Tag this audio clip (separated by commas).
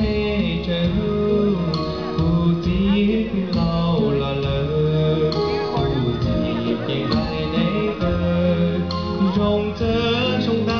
Male singing, Speech, Music